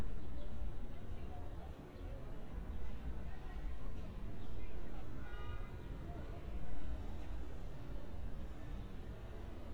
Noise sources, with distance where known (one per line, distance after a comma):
car horn, far
person or small group talking, far